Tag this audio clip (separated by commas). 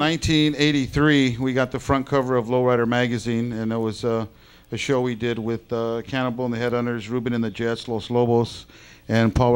Speech